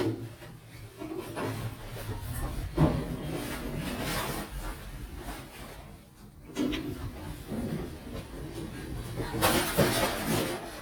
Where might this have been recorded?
in an elevator